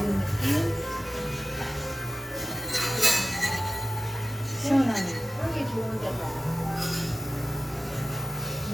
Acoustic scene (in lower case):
cafe